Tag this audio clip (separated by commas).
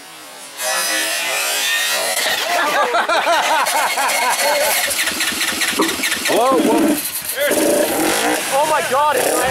outside, rural or natural, Car, Vehicle, Speech